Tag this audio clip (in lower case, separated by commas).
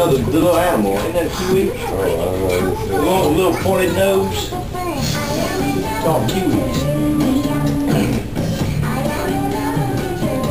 music, speech